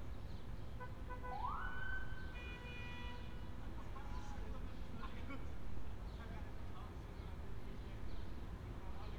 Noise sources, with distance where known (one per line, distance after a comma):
car horn, near
siren
unidentified human voice, far